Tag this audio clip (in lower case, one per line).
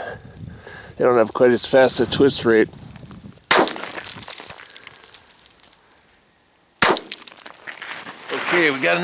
outside, rural or natural
speech